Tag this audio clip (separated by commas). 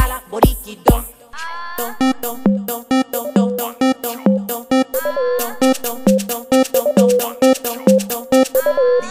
Music